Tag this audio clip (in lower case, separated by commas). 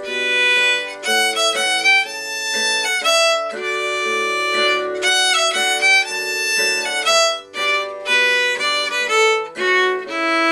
musical instrument, music, fiddle